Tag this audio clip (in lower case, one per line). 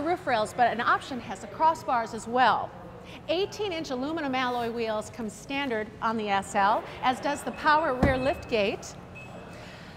speech